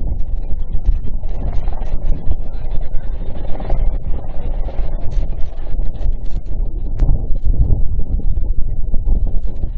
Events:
[0.00, 9.75] wind noise (microphone)

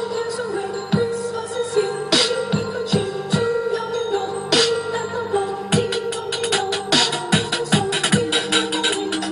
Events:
[0.00, 9.31] female singing
[0.00, 9.31] music

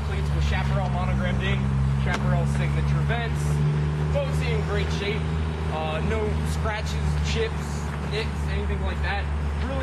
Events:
[0.00, 1.61] male speech
[0.00, 9.82] medium engine (mid frequency)
[2.01, 3.57] male speech
[4.05, 5.28] male speech
[5.68, 6.23] male speech
[6.41, 6.97] male speech
[7.19, 7.87] male speech
[8.06, 8.27] male speech
[8.41, 9.26] male speech
[9.56, 9.82] male speech

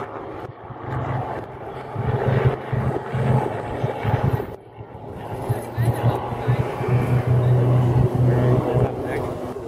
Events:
[0.00, 9.65] aircraft
[0.00, 9.65] wind
[5.47, 6.19] speech
[6.35, 6.79] speech
[7.35, 7.66] speech
[8.95, 9.65] male speech

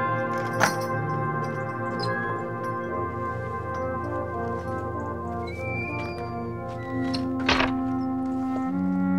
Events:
[0.00, 9.15] music
[0.11, 1.19] bell
[0.27, 0.79] generic impact sounds
[1.38, 1.98] bell
[1.95, 2.14] squeal
[2.00, 2.44] creak
[2.58, 2.96] bell
[3.72, 4.05] bell
[4.10, 4.82] surface contact
[5.32, 6.61] creak
[6.73, 7.10] creak
[7.08, 7.21] tick
[7.41, 7.74] door
[7.94, 8.07] squeal
[8.23, 8.77] surface contact

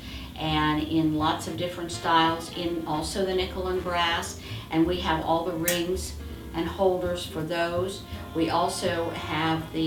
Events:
[0.00, 0.36] breathing
[0.34, 4.22] woman speaking
[0.81, 9.85] music
[4.31, 4.67] breathing
[4.67, 6.12] woman speaking
[5.63, 5.83] tick
[6.49, 9.85] woman speaking

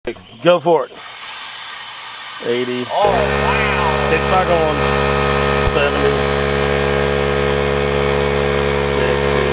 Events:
[0.00, 0.18] male speech
[0.03, 0.42] generic impact sounds
[0.03, 0.93] wind
[0.12, 0.94] bird vocalization
[0.41, 0.90] male speech
[0.93, 9.52] medium engine (mid frequency)
[2.36, 3.79] male speech
[2.37, 5.91] conversation
[4.07, 4.75] male speech
[5.75, 6.11] male speech
[8.91, 9.49] male speech
[8.95, 9.44] generic impact sounds

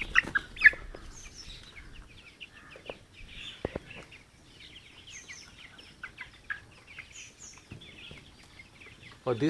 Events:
[0.00, 0.83] bird flight
[0.00, 9.45] background noise
[2.72, 2.91] tap
[3.58, 3.79] footsteps
[8.79, 9.45] tweet
[9.07, 9.14] generic impact sounds

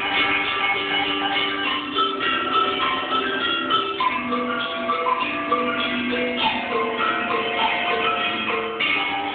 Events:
[0.00, 9.34] music

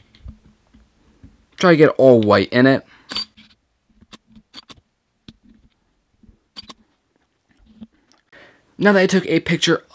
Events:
[0.00, 0.46] generic impact sounds
[0.00, 9.94] background noise
[0.14, 0.18] tick
[0.26, 0.33] tick
[0.61, 1.29] generic impact sounds
[0.73, 0.78] tick
[1.22, 1.28] tick
[1.53, 2.80] man speaking
[1.59, 1.66] tick
[2.84, 3.08] breathing
[3.12, 3.59] single-lens reflex camera
[3.96, 4.03] tick
[4.09, 4.18] tick
[4.33, 4.40] tick
[4.52, 4.79] single-lens reflex camera
[5.26, 5.30] tick
[5.42, 5.86] generic impact sounds
[5.47, 5.54] tick
[5.70, 5.76] tick
[6.55, 6.76] single-lens reflex camera
[6.77, 7.22] generic impact sounds
[7.38, 8.23] generic impact sounds
[7.82, 7.90] tick
[8.33, 8.65] breathing
[8.77, 9.94] man speaking

